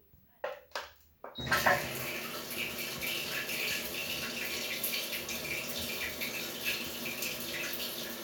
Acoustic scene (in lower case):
restroom